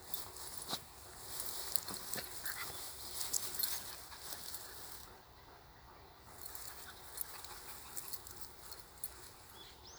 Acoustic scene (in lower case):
park